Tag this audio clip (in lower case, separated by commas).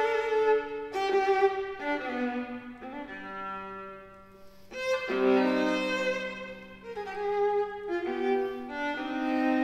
playing cello